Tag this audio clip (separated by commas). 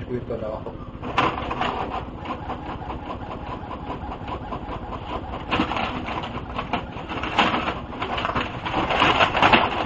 Speech, Printer